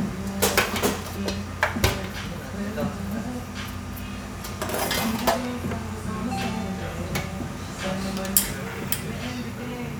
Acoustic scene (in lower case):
cafe